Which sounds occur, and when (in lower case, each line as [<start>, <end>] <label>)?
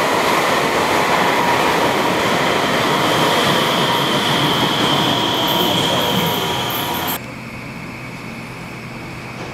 [0.00, 9.53] subway
[5.75, 6.70] male speech